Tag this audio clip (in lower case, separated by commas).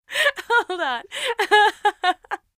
human voice, chortle, laughter